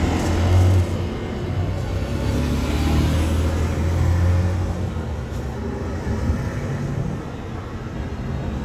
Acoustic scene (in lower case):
street